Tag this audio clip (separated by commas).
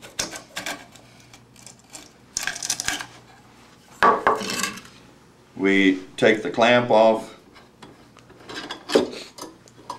Speech